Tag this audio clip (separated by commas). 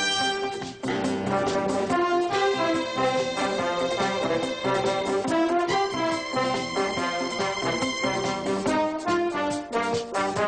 Music